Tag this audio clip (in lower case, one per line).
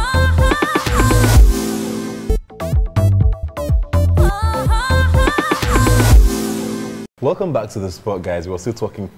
dance music